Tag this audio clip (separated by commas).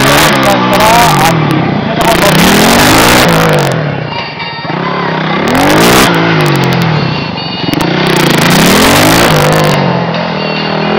Speech